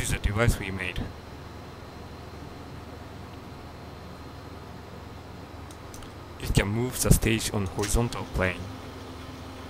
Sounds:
Speech

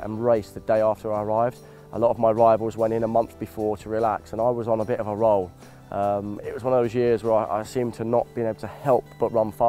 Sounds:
Music, Speech

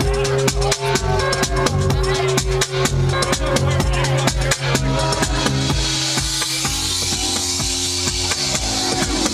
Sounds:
Music

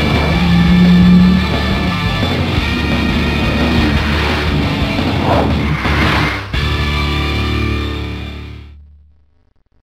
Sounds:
Music, Car, Vehicle

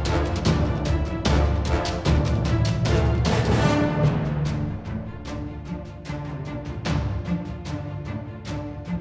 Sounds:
Music

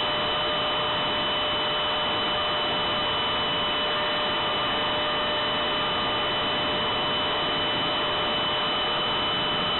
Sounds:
Wind noise (microphone), Wind

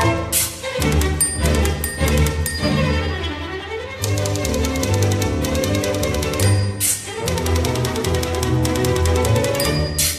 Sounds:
Orchestra, Music

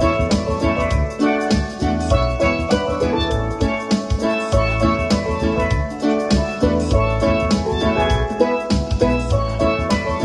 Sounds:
Music, Steelpan

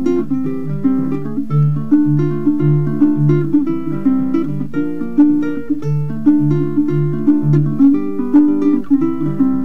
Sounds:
Music

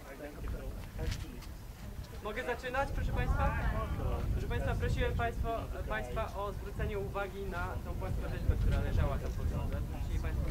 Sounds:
Speech

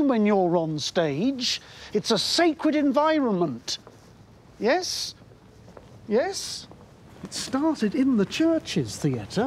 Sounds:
Speech, Tap

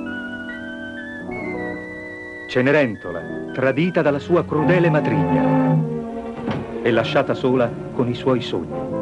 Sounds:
Speech, Television, Music

